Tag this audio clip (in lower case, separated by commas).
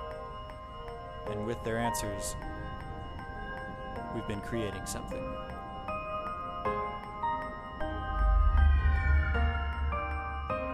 speech, music